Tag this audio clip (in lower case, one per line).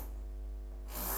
tools